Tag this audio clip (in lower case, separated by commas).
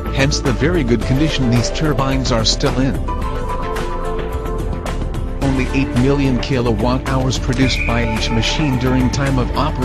music, speech